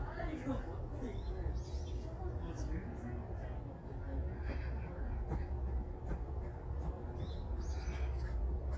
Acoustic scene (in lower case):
park